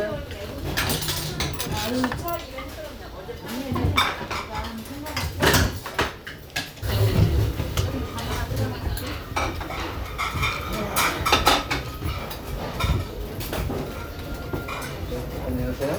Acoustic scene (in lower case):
restaurant